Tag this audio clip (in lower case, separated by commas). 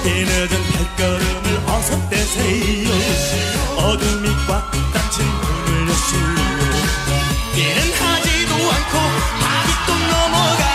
music, music of asia